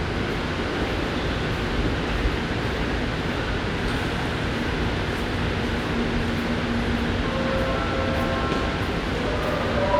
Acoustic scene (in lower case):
subway station